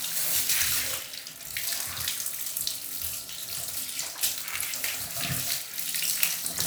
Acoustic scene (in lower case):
restroom